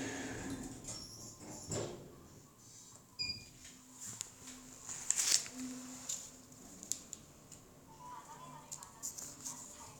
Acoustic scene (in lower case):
elevator